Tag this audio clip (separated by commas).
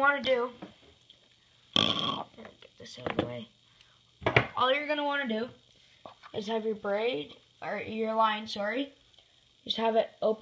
Speech